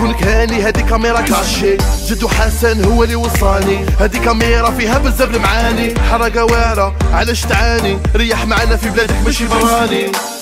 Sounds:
Music

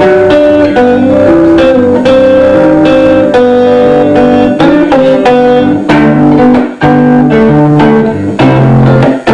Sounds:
Musical instrument, Electric guitar, Guitar, Music, Plucked string instrument

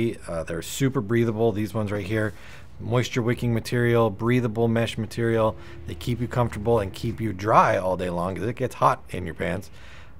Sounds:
Speech

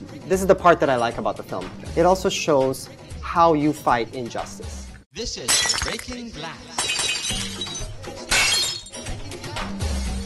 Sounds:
Speech, Music, Breaking

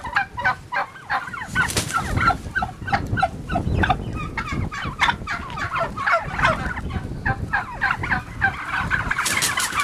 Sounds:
Turkey, Fowl

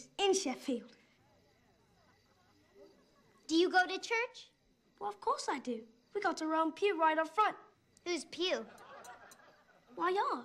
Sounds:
Speech

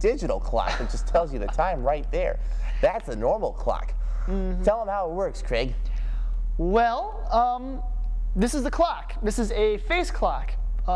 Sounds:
Speech

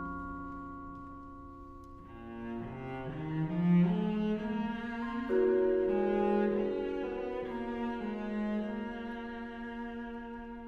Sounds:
Orchestra, Bowed string instrument, Classical music, Cello, Musical instrument, Music

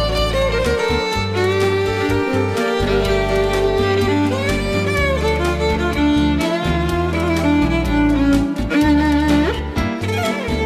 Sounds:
Violin, Music, Musical instrument

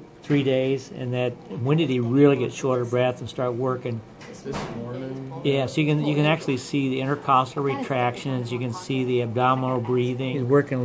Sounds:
Speech

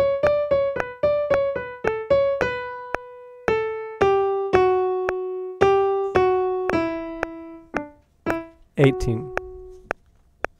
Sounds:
Music, Pizzicato, Speech, Musical instrument

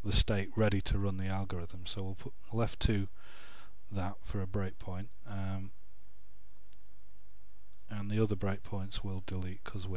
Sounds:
Speech

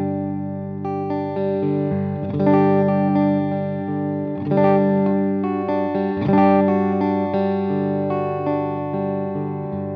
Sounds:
Plucked string instrument, Music, Electric guitar, Guitar, Musical instrument

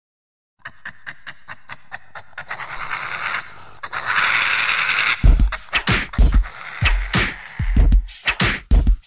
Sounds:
Soundtrack music, Music

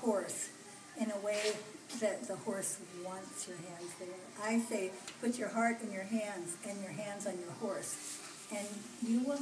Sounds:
Speech

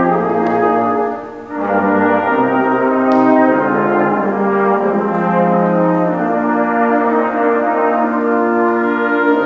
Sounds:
Music

